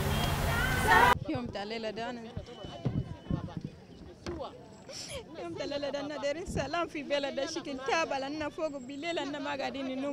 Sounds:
Speech

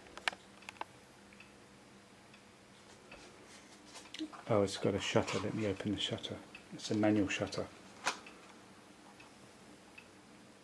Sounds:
Speech

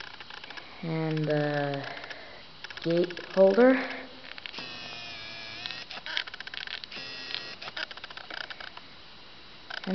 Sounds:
Speech

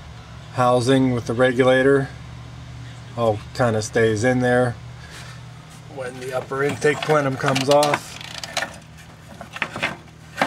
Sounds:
Speech

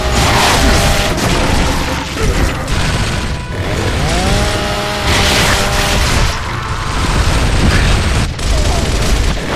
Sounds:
Music

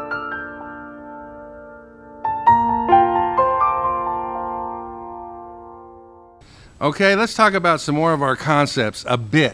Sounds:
Electric piano, Speech, Music

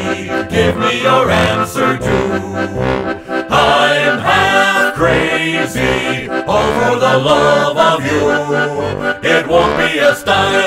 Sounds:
Music

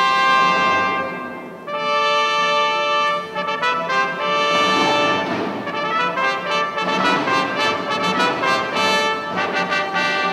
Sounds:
Music, Brass instrument, Musical instrument

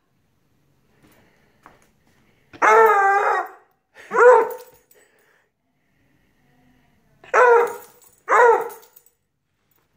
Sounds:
dog baying

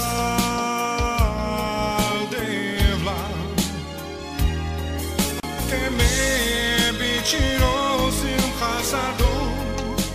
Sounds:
Gospel music, Music

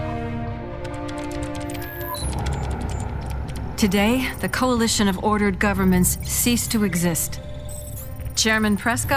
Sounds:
Speech, Music

